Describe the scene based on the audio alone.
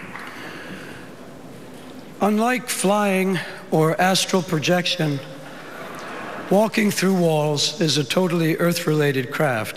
A man giving a speech